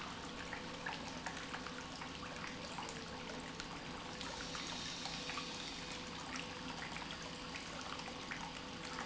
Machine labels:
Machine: pump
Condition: normal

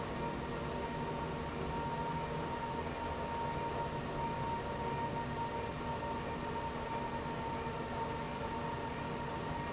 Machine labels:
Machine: pump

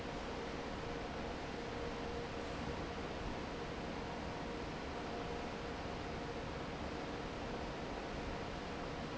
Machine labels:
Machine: fan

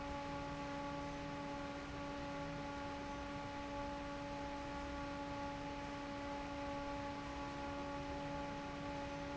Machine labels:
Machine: fan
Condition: normal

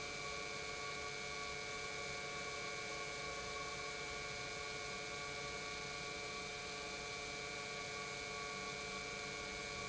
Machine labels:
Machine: pump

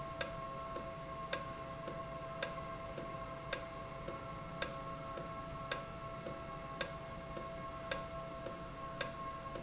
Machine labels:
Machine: valve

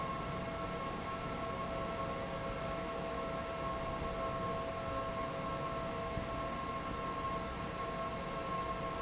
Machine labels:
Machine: fan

